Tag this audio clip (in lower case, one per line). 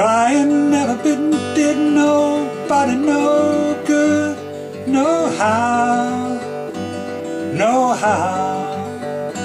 music